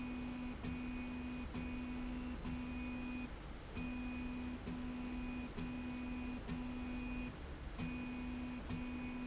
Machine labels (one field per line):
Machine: slide rail